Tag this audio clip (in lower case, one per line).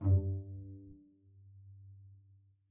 music
bowed string instrument
musical instrument